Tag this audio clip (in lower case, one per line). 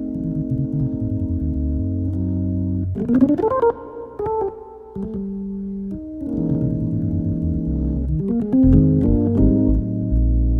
music